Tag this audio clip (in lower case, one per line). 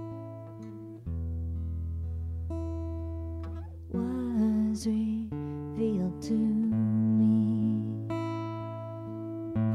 singing
acoustic guitar